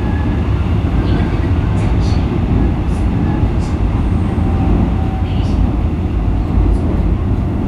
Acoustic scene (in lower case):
subway train